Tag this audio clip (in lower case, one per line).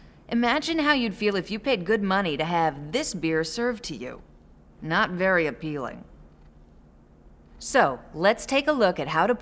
speech